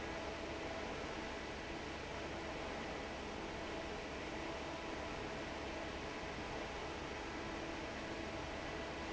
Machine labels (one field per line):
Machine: fan